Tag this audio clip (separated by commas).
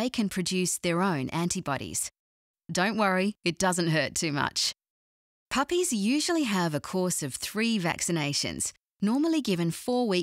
Speech